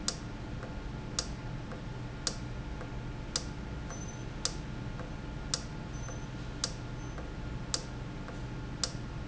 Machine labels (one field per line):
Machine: valve